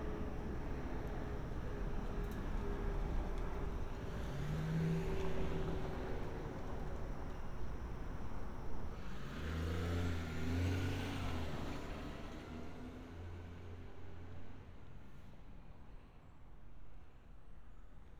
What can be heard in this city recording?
medium-sounding engine